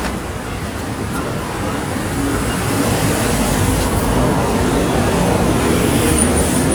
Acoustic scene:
street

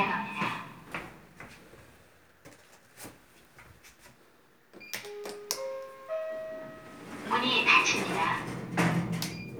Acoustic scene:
elevator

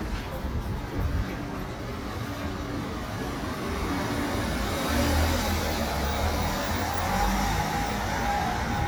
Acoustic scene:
residential area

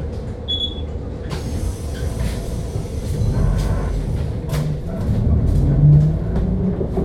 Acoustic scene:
bus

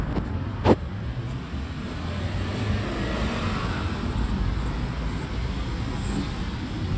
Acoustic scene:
residential area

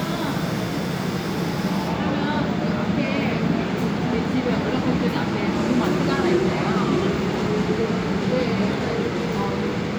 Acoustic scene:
subway station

